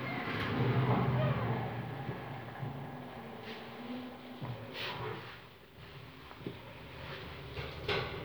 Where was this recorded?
in an elevator